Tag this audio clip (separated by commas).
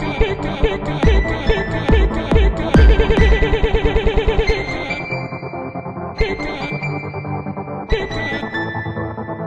Music, Electronic music, Techno